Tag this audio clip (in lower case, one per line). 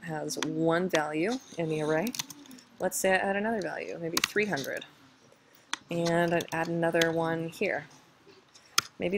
speech